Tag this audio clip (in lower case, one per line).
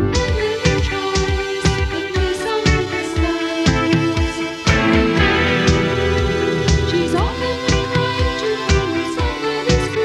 psychedelic rock
music